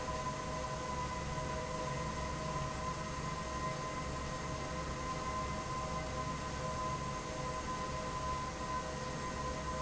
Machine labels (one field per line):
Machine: fan